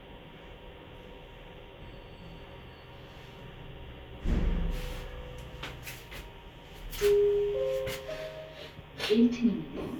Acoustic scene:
elevator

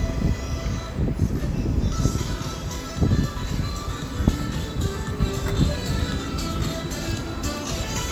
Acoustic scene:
street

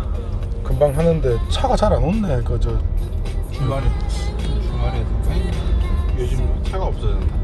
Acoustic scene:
car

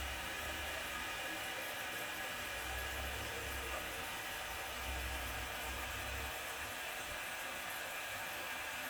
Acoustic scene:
restroom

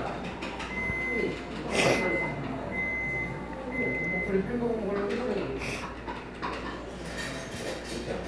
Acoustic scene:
cafe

